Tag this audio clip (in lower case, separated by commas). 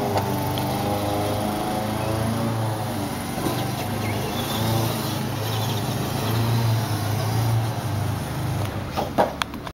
truck